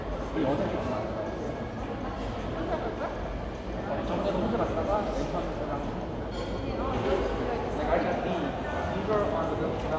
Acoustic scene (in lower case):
crowded indoor space